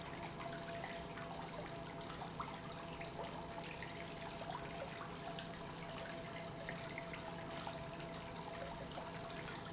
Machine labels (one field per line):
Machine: pump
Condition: normal